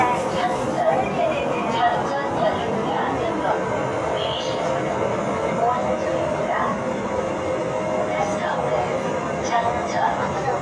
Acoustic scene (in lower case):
subway train